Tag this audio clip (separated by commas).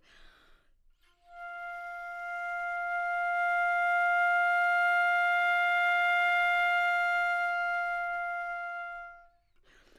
Wind instrument, Music, Musical instrument